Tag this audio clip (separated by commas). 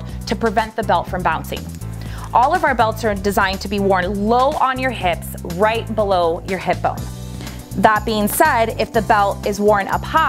Speech, Music